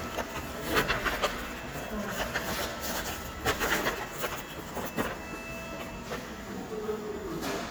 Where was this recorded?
in a subway station